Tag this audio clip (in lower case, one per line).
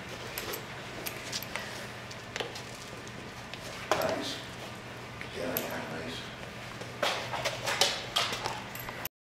speech